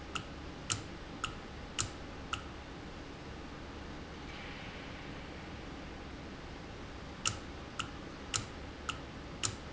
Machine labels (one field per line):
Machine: valve